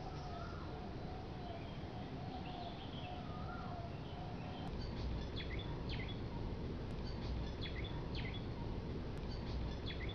Forest sounds featuring bird calls primarily